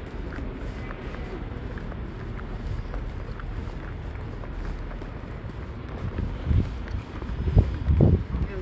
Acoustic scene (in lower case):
residential area